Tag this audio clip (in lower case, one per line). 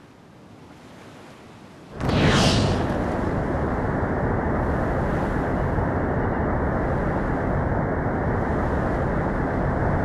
vehicle